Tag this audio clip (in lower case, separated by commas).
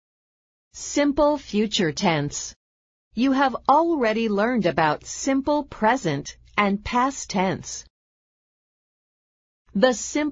speech